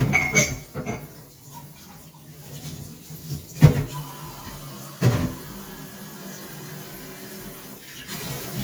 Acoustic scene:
kitchen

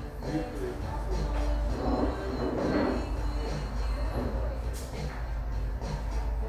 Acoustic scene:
cafe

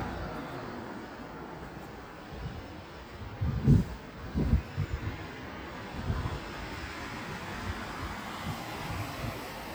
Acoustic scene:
street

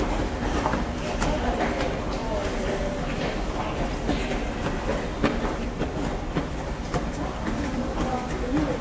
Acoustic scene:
subway station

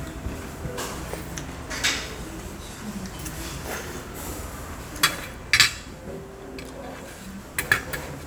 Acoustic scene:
restaurant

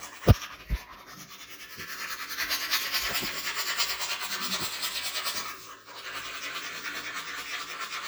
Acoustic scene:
restroom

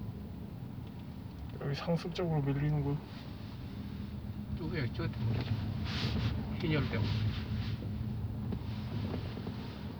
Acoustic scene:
car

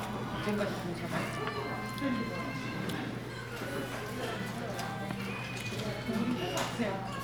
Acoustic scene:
crowded indoor space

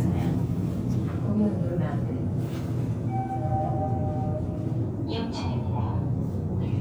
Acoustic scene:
elevator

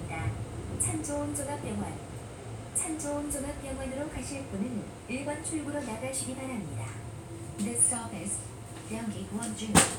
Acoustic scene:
subway train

